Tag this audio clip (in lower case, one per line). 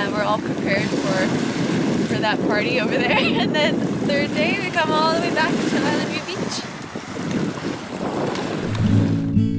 music
speech
water vehicle